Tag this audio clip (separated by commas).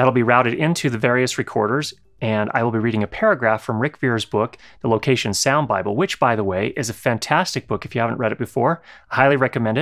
Speech